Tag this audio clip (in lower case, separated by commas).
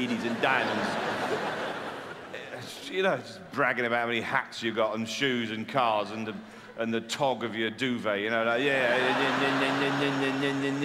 speech